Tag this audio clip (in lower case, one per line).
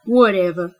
human voice
woman speaking
speech